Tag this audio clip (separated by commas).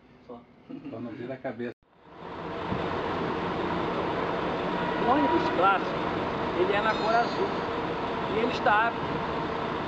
Speech